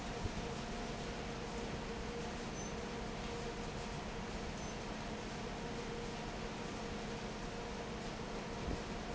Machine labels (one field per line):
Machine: fan